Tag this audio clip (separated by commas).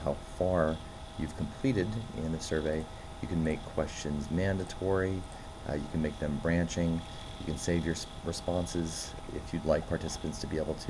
Speech